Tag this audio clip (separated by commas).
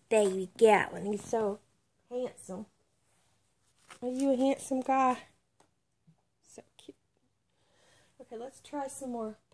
Speech